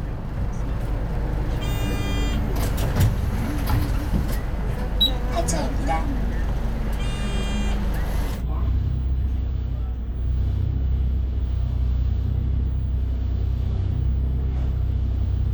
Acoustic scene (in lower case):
bus